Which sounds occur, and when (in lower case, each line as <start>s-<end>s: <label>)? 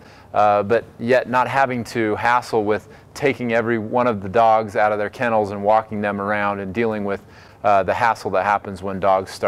0.0s-0.3s: breathing
0.0s-9.4s: mechanisms
0.3s-0.8s: man speaking
1.0s-2.8s: man speaking
2.9s-3.1s: breathing
3.1s-7.2s: man speaking
7.3s-7.6s: breathing
7.6s-9.4s: man speaking